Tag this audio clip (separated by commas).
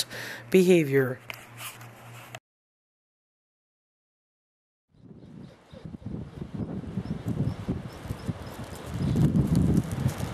Wind noise (microphone), Speech